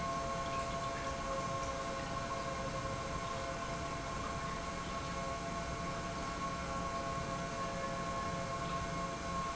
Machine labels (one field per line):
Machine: pump